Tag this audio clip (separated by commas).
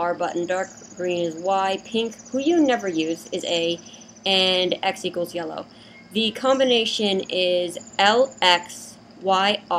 Speech